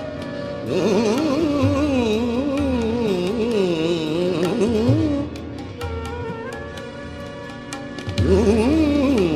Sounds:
carnatic music, music

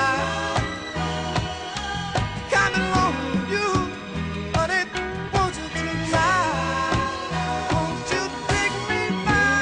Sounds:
middle eastern music, music

